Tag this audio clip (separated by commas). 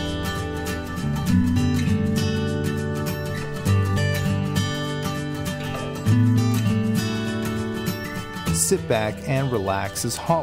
Speech, Music